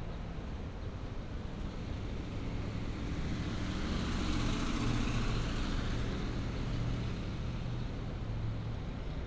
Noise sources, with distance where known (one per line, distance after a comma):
medium-sounding engine, near